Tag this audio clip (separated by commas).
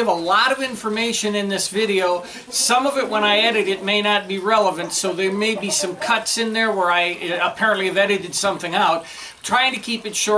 rooster, Speech, Cluck